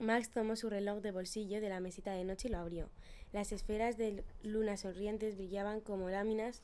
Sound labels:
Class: speech